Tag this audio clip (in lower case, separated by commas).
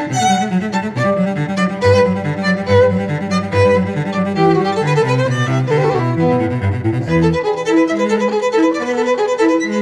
musical instrument, violin, music